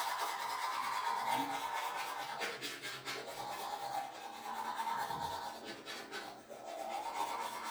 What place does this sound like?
restroom